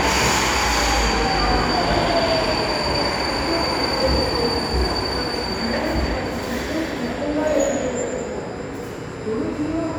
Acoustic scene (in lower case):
subway station